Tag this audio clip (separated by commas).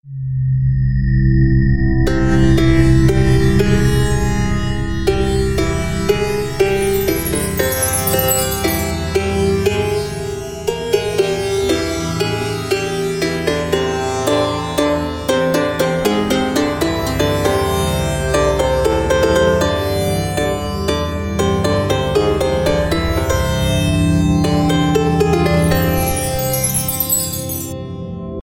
Music, Musical instrument, Plucked string instrument